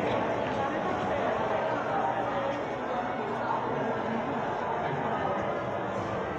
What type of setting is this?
crowded indoor space